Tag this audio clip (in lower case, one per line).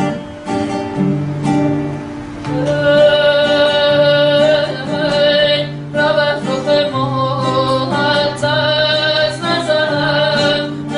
female singing
music